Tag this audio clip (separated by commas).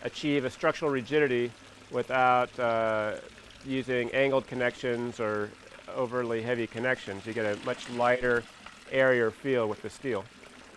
Speech